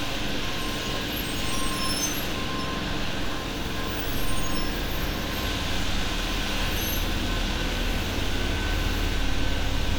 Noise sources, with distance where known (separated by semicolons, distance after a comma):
large-sounding engine